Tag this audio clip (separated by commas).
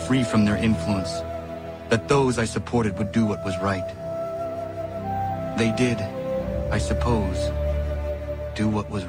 monologue, man speaking, Speech, Music